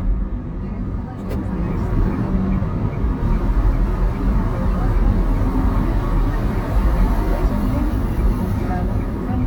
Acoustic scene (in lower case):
car